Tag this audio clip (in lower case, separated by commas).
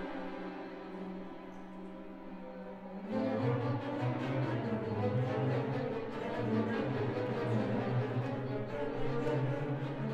classical music, music